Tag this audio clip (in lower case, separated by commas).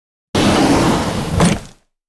drawer open or close, home sounds